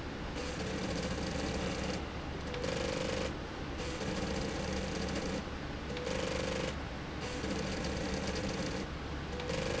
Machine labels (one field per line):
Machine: slide rail